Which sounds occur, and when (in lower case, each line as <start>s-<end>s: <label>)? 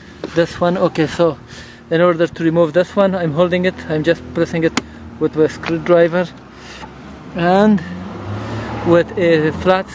0.0s-9.9s: medium engine (mid frequency)
0.1s-1.3s: male speech
0.2s-0.3s: generic impact sounds
1.4s-1.8s: breathing
1.9s-4.1s: male speech
4.3s-4.7s: male speech
4.6s-4.9s: generic impact sounds
4.8s-5.0s: breathing
5.1s-6.3s: male speech
6.5s-6.8s: breathing
7.3s-8.0s: male speech
7.8s-8.9s: vroom
8.2s-8.6s: breathing
8.8s-9.8s: male speech
9.1s-9.6s: vroom